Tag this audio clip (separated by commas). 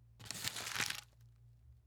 Crumpling